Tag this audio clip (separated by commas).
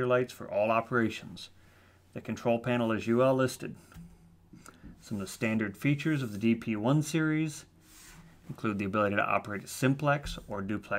Speech